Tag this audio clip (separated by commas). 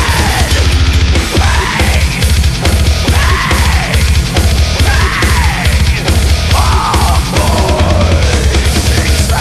Music